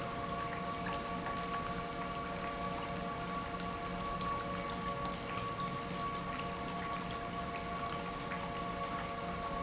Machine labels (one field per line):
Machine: pump